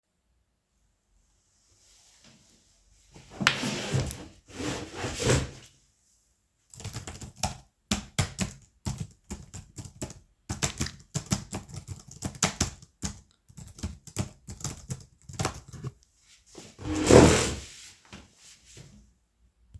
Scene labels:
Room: bedroom; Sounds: keyboard typing, footsteps

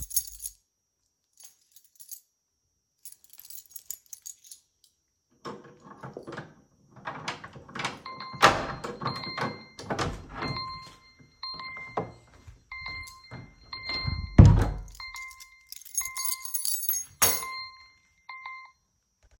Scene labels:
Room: hallway; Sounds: keys, door, phone ringing

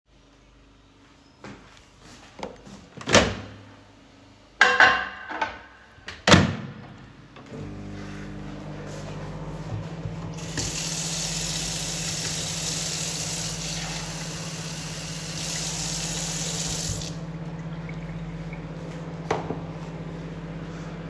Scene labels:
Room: kitchen; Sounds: microwave, cutlery and dishes, running water

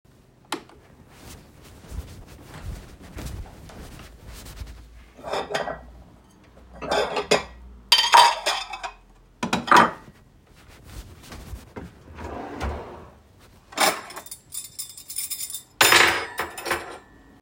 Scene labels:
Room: kitchen; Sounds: light switch, footsteps, cutlery and dishes, wardrobe or drawer (more than once)

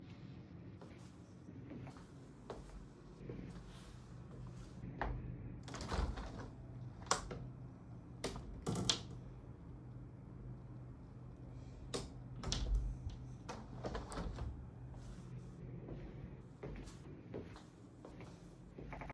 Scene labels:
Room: living room; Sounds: footsteps, window (more than once)

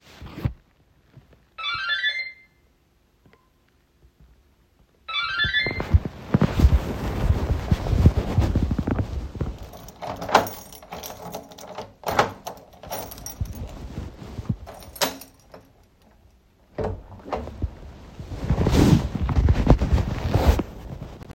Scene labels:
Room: hallway; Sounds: bell ringing, door (more than once), keys

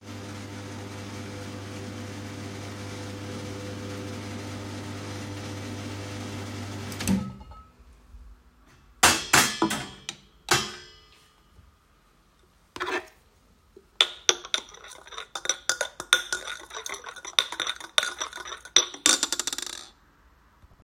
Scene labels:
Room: kitchen; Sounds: coffee machine, cutlery and dishes

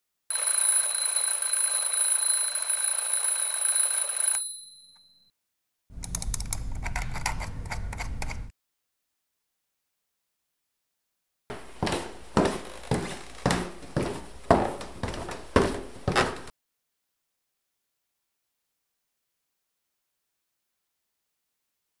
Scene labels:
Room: bedroom; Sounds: phone ringing, keyboard typing, footsteps

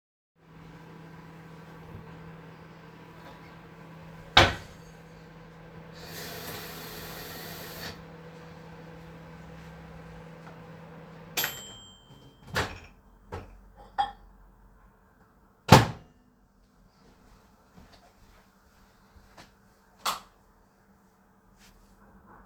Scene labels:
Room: kitchen; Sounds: microwave, wardrobe or drawer, running water, footsteps, cutlery and dishes, light switch

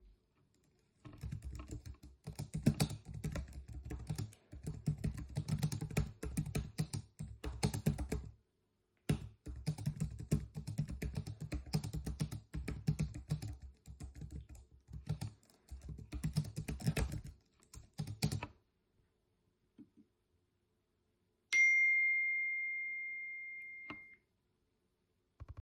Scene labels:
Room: office; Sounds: keyboard typing, phone ringing

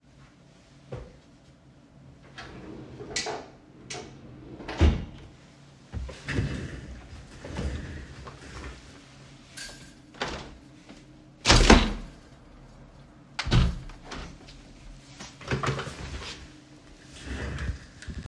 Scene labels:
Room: office; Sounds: wardrobe or drawer, window (more than once)

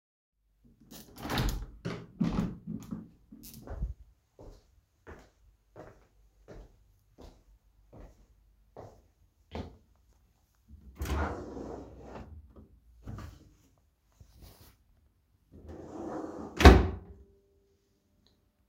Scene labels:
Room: living room; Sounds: door, footsteps, wardrobe or drawer (more than once)

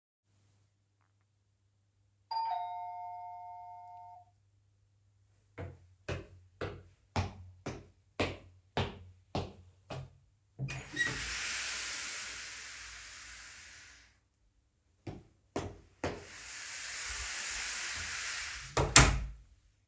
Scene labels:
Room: living room; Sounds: bell ringing, footsteps, door (more than once)

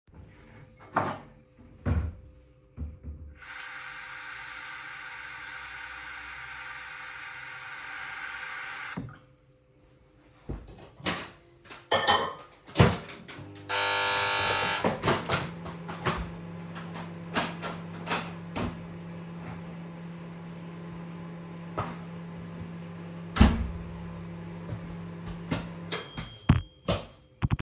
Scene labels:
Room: kitchen; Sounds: running water, microwave, cutlery and dishes, bell ringing

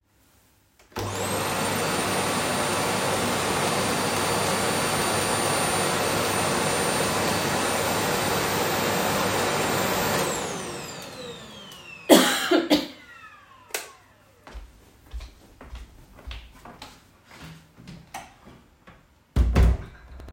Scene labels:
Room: bedroom; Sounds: vacuum cleaner, light switch, footsteps, door

